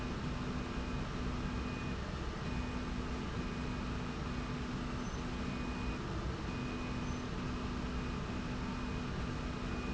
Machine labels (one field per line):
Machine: slide rail